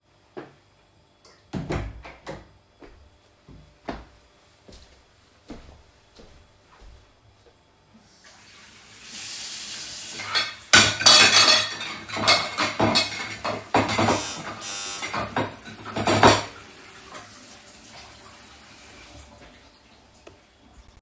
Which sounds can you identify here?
footsteps, door, running water, cutlery and dishes, bell ringing